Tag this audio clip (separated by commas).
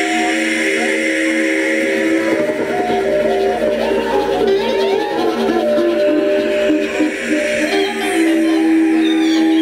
Sound effect, Music